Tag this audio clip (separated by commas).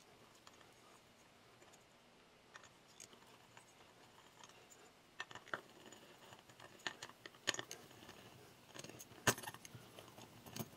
inside a small room